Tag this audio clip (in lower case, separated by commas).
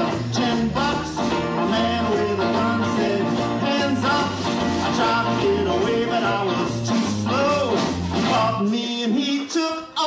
bluegrass, music, singing